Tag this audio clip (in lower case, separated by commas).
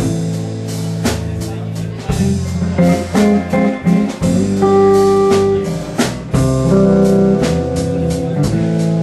plucked string instrument, acoustic guitar, musical instrument, strum, guitar, music